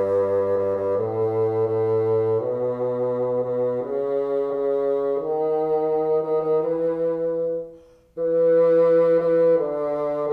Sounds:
playing bassoon

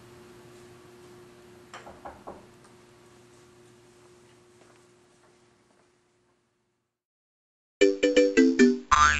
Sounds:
music

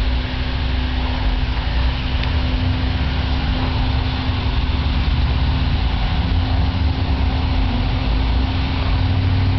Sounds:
aircraft
vehicle

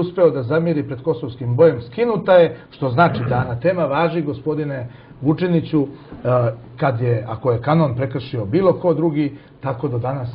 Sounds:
speech

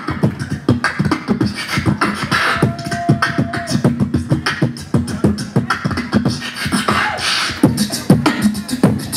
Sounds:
beatboxing
vocal music

